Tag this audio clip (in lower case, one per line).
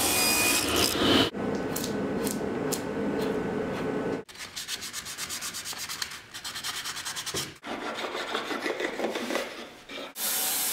tools